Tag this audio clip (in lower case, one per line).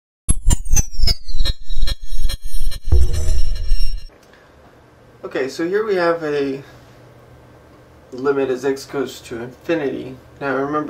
speech
inside a small room